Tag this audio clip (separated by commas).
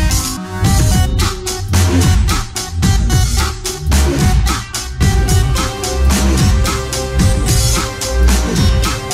Music, Dubstep